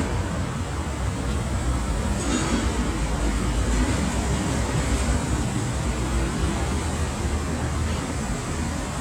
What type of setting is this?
street